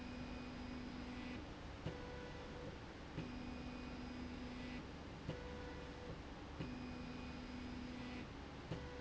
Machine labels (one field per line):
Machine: slide rail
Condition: normal